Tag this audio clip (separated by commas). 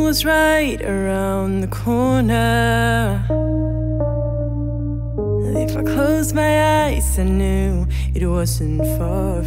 Music